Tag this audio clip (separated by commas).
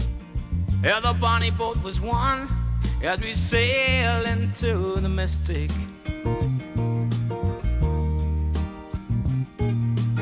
Music, Soundtrack music, Happy music